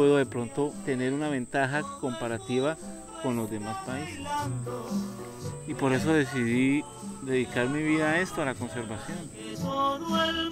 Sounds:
Music, Speech

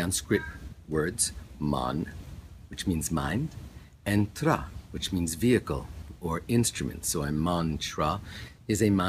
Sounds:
Speech

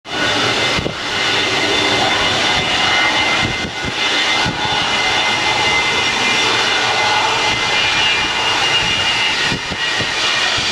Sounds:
Aircraft, outside, urban or man-made, Aircraft engine

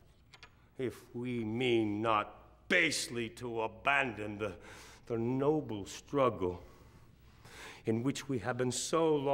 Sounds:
Speech, monologue, man speaking

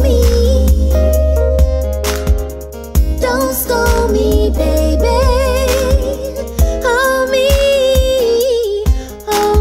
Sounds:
Music

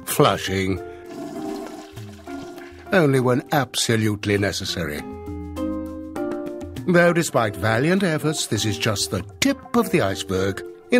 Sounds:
Music, Speech

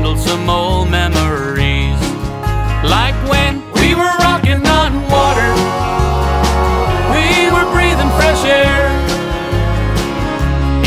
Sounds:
Music

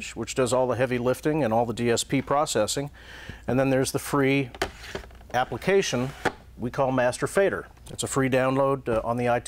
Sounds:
Speech, Tap

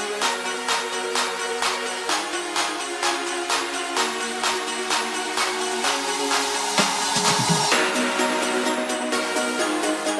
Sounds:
Soundtrack music, Music, Dance music, House music

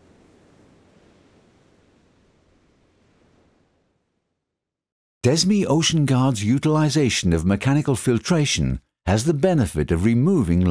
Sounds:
Speech

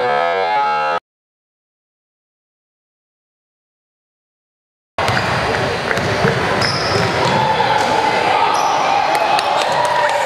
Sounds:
Music

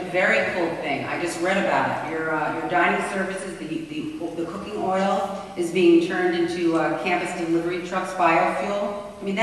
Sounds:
Speech

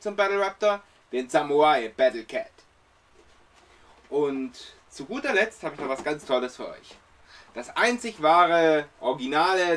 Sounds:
Speech

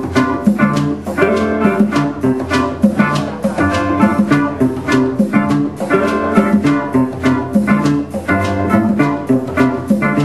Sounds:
Music, Steelpan

